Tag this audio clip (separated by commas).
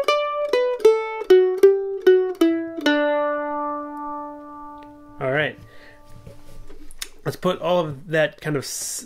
playing mandolin